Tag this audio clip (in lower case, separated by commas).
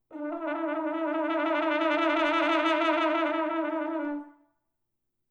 music, brass instrument, musical instrument